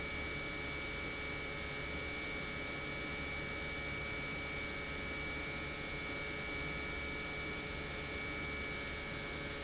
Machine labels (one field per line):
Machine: pump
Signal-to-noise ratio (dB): 0 dB